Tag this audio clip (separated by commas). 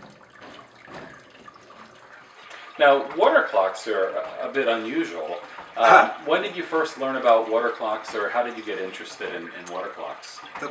Stream, Speech